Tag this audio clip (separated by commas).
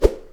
swish